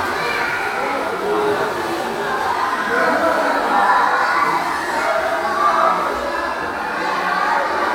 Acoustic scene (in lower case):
crowded indoor space